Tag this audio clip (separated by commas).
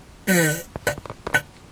Fart